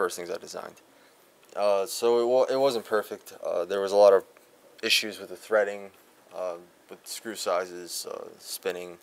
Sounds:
speech

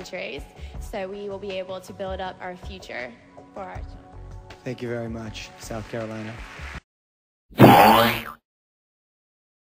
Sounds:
music, speech

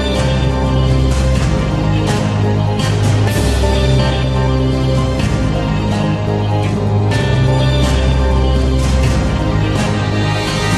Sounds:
music

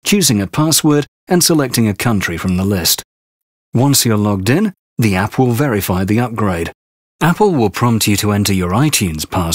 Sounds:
speech, speech synthesizer

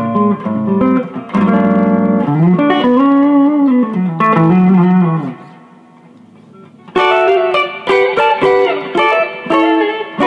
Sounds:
strum, musical instrument, plucked string instrument, music, guitar, acoustic guitar, electric guitar

